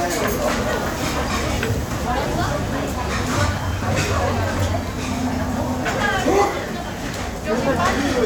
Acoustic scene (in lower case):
restaurant